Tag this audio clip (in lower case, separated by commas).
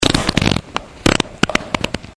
fart